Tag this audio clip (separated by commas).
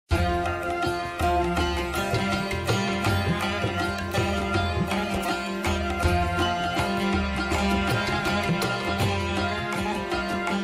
Sitar, Music